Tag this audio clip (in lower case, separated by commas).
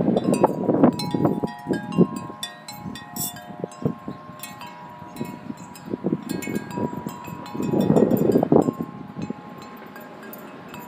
wind chime, chime